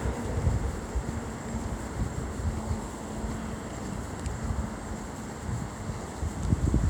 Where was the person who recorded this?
on a street